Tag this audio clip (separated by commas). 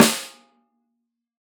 Musical instrument, Percussion, Snare drum, Drum, Music